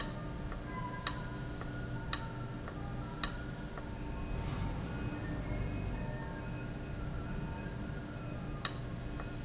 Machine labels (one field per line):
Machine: valve